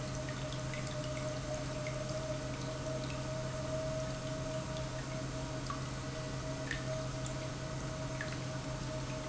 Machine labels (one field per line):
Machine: pump